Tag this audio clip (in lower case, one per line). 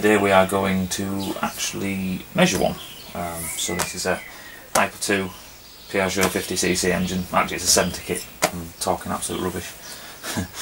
domestic animals
speech